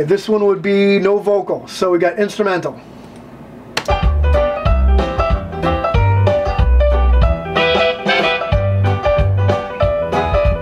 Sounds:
music
speech
musical instrument

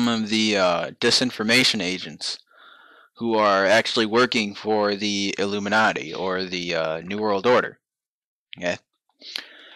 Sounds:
speech

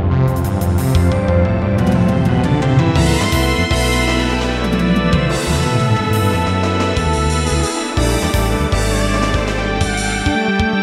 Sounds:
music

